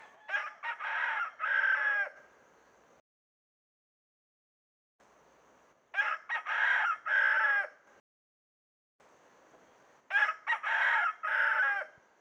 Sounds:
livestock, Fowl, Chicken, Animal

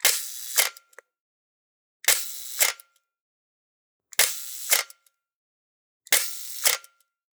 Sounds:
Mechanisms, Camera

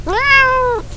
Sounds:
Meow, pets, Animal, Cat

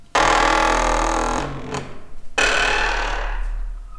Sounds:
Squeak

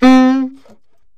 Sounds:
Music, Wind instrument, Musical instrument

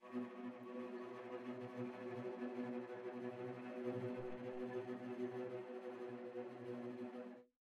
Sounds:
Bowed string instrument, Musical instrument, Music

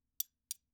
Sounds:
silverware, Domestic sounds

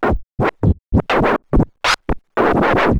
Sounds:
Music, Scratching (performance technique), Musical instrument

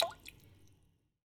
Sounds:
Water, Rain, Raindrop

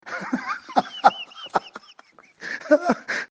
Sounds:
Laughter, Human voice

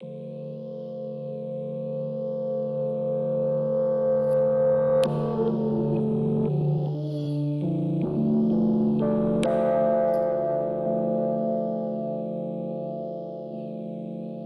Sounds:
Piano, Keyboard (musical), Music, Musical instrument

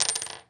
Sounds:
home sounds, Coin (dropping)

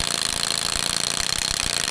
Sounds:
Tools

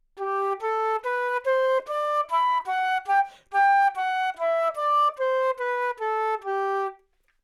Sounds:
Music, woodwind instrument, Musical instrument

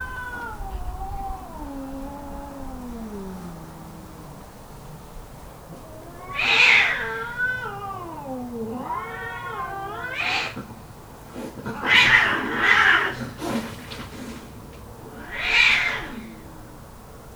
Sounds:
Animal, Hiss, Domestic animals, Cat

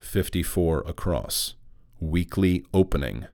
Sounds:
Human voice, man speaking, Speech

